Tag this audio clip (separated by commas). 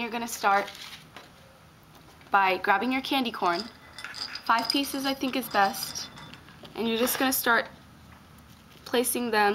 Speech